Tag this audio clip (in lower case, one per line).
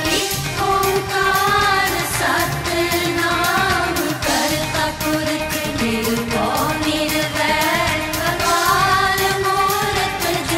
music of asia
singing
music